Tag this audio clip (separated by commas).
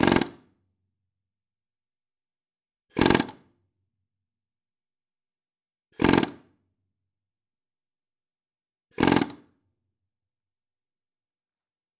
Tools